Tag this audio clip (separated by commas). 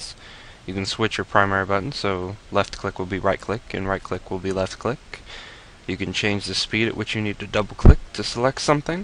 Speech